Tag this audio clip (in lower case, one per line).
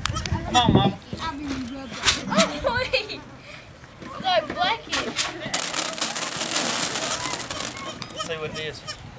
speech